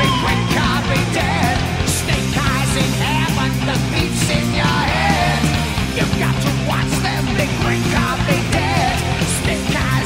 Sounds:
Punk rock, Music

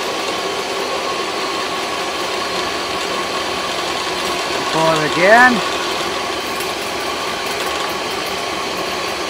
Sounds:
Speech

